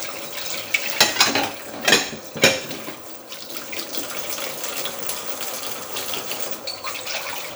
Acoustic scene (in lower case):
kitchen